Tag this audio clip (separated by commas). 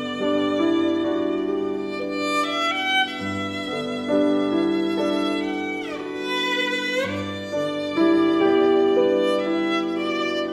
Violin, Bowed string instrument